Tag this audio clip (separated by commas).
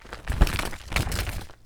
crinkling